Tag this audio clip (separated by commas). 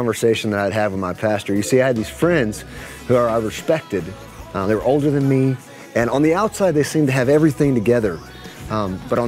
Speech, Roll, Music